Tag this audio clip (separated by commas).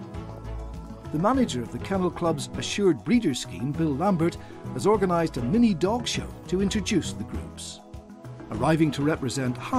Music, Speech